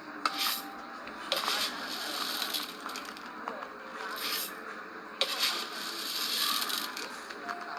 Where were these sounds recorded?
in a cafe